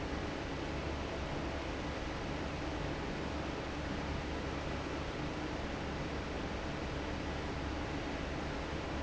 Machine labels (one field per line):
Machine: fan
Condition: normal